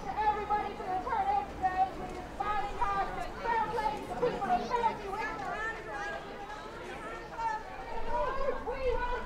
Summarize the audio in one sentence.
Faint noise of a woman speaking among a crowd of muffled audience chatter